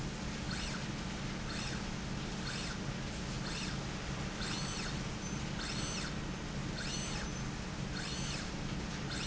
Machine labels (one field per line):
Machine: slide rail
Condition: normal